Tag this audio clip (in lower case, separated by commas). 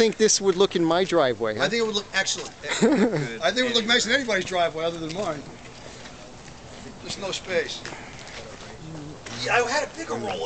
speech